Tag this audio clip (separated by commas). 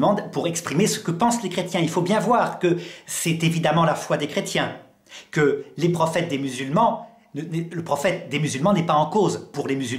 Speech